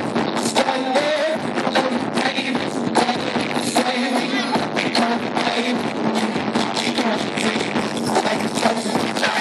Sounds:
music, cacophony

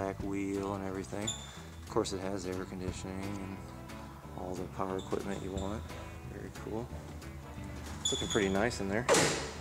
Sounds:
door

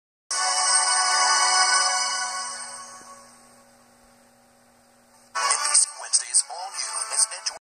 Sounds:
music, television, speech

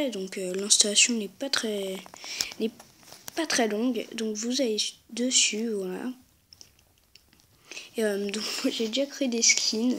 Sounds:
speech

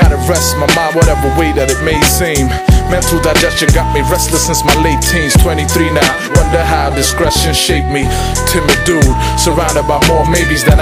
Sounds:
music

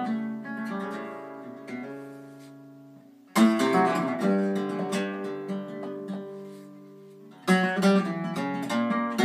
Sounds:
pizzicato

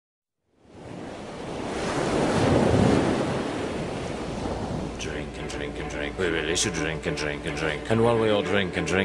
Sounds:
music, ocean, speech

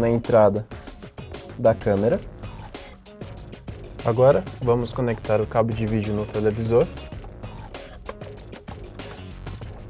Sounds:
speech, music

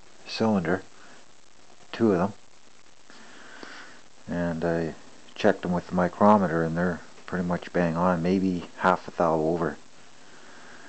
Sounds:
speech

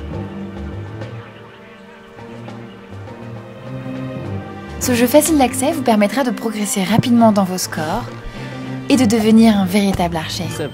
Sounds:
music, speech

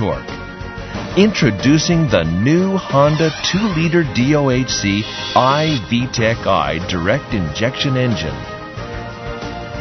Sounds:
speech, music

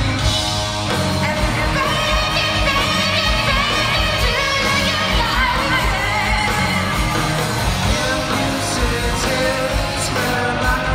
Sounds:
inside a large room or hall, music, singing

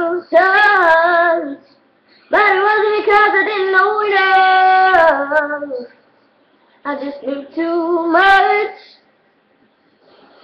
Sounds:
female singing

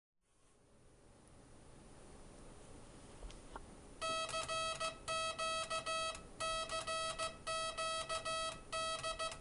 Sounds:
inside a small room

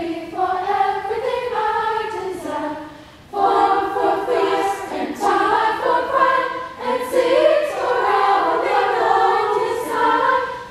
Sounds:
choir, singing choir

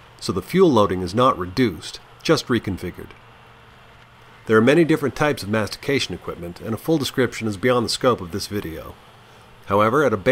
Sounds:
speech

